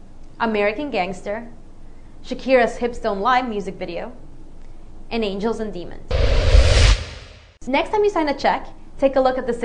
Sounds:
Speech

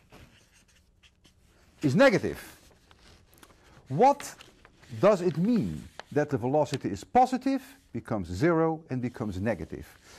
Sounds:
Writing

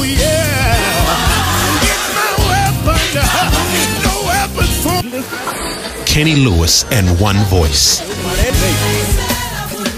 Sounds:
Exciting music, Speech, Music

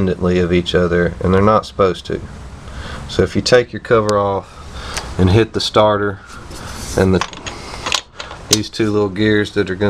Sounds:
inside a small room, Speech

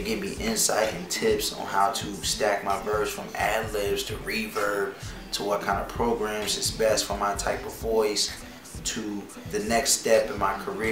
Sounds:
Music, Speech

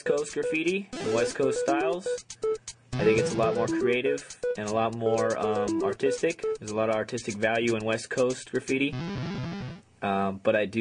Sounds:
Speech, Hip hop music, Music

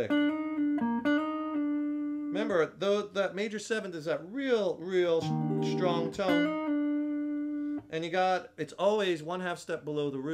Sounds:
Guitar, Music, inside a small room, Speech, Musical instrument, Plucked string instrument

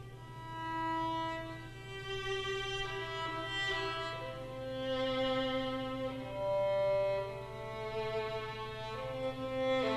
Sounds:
Musical instrument, Music, fiddle

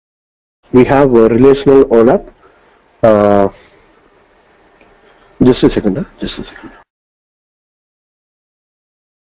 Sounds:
Speech

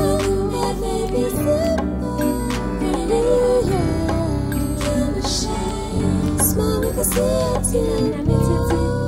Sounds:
Music

